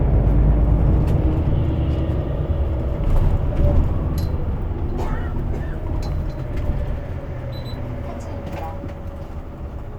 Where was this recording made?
on a bus